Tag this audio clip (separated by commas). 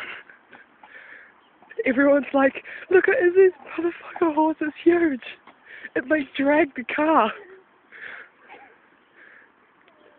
Speech